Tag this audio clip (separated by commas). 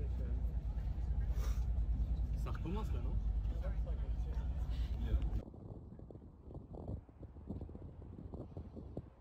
volcano explosion